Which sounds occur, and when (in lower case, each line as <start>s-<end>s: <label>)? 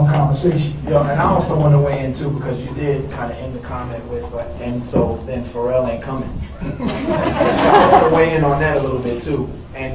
0.0s-0.8s: male speech
0.0s-9.9s: background noise
0.9s-6.4s: male speech
1.9s-2.0s: tick
3.9s-4.0s: tick
4.9s-5.2s: generic impact sounds
5.2s-5.3s: tick
6.4s-8.6s: laughter
7.9s-9.5s: male speech
9.1s-9.2s: tick
9.7s-9.9s: male speech